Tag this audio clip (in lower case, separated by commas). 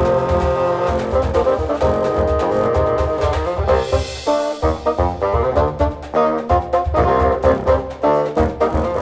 playing bassoon